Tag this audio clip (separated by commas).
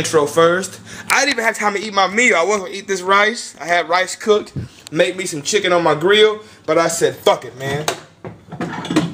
Speech, inside a small room